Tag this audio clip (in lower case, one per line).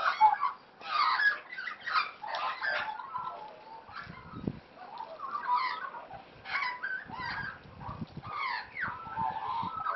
magpie calling